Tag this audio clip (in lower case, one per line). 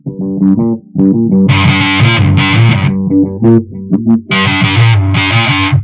musical instrument
guitar
plucked string instrument
music